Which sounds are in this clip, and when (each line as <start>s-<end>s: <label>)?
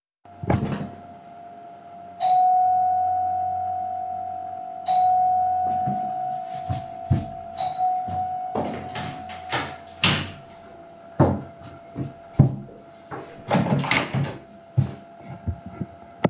2.1s-9.7s: bell ringing
6.6s-13.5s: footsteps
8.8s-10.8s: door
13.4s-14.5s: door
14.5s-15.8s: footsteps